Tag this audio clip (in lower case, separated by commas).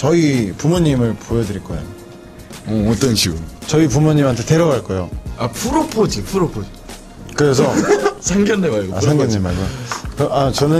speech, music